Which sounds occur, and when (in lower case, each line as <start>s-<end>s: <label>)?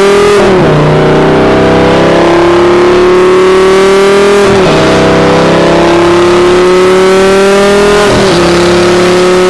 0.0s-9.4s: vroom
0.0s-9.4s: car